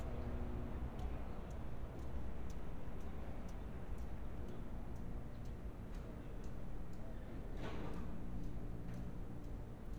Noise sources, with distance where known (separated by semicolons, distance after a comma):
background noise